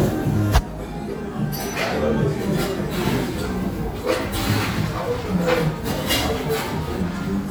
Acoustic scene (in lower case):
cafe